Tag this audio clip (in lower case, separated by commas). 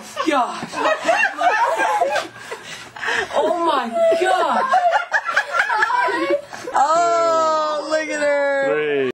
speech